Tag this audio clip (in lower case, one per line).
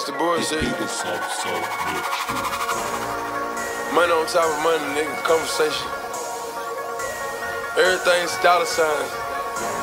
speech
music